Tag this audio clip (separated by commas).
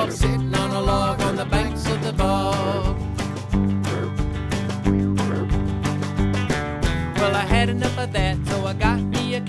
Music